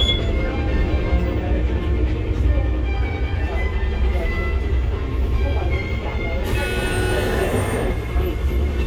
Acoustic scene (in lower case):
bus